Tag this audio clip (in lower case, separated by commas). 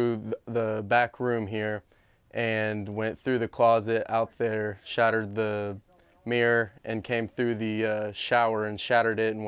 speech